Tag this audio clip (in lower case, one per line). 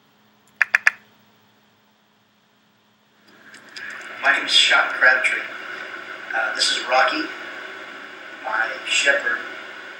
speech